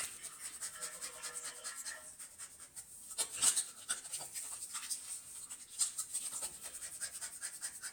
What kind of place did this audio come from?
restroom